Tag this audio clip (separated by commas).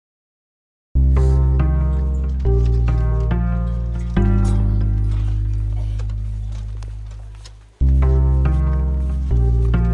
Music